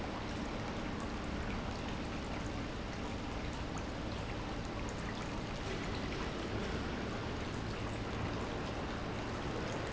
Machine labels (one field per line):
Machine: pump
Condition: normal